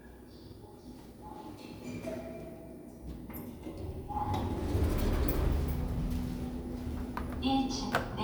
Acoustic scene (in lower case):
elevator